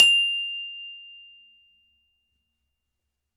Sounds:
glockenspiel, music, percussion, mallet percussion, musical instrument

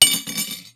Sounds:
silverware, dishes, pots and pans, home sounds

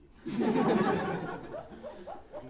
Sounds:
human voice, laughter

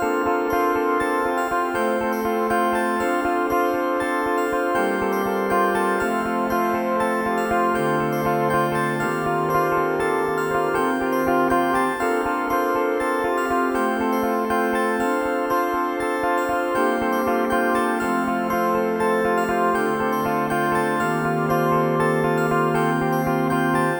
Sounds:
music, keyboard (musical), piano, musical instrument

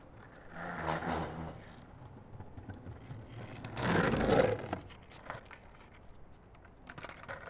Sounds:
vehicle, skateboard

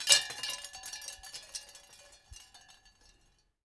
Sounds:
chime, wind chime, bell

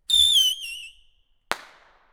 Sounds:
explosion, fireworks

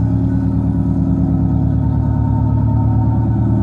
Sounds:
engine

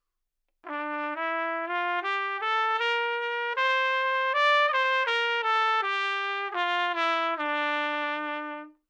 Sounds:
musical instrument, music, brass instrument, trumpet

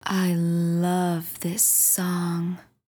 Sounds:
woman speaking, human voice, speech

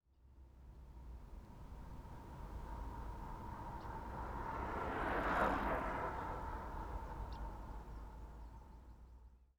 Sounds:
vehicle, traffic noise, motor vehicle (road), bicycle

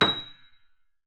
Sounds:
piano, keyboard (musical), musical instrument, music

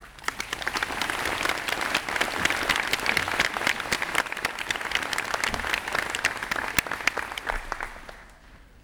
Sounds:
applause, human group actions

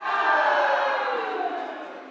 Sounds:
cheering, human group actions

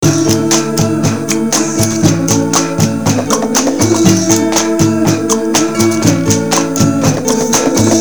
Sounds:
plucked string instrument, music, acoustic guitar, guitar, musical instrument, human voice

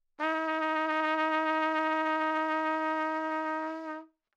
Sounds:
music, musical instrument, brass instrument, trumpet

